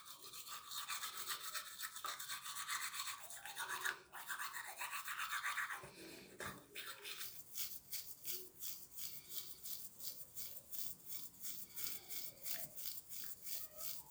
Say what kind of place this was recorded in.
restroom